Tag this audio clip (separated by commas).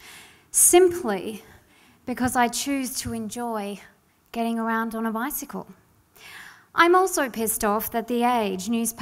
Speech